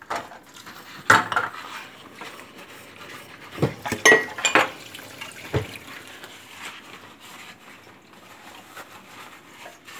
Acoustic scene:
kitchen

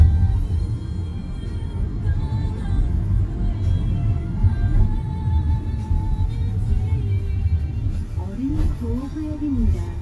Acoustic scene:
car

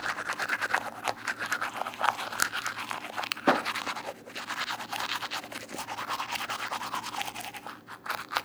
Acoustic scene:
restroom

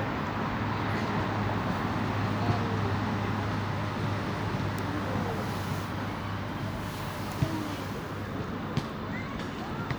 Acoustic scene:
residential area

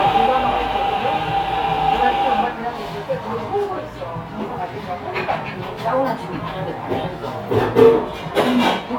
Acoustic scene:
cafe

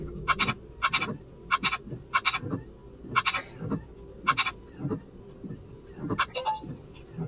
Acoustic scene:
car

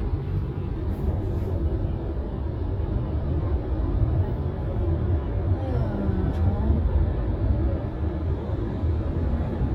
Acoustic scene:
car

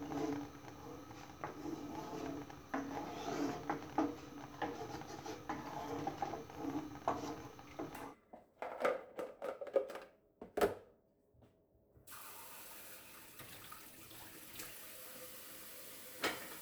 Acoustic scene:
kitchen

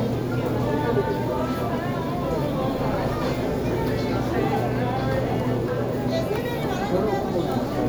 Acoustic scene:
crowded indoor space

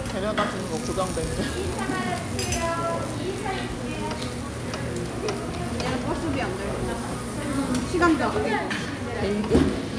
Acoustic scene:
restaurant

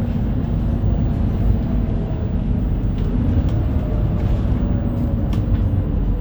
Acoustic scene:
bus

